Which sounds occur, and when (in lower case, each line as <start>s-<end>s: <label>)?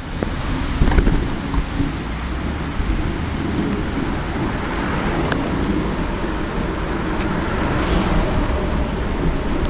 0.0s-9.6s: bicycle
0.0s-9.6s: wind
0.2s-0.2s: tick
0.8s-1.2s: generic impact sounds
1.5s-1.6s: tick
3.7s-3.7s: tick
5.3s-5.3s: tick
7.1s-7.2s: tick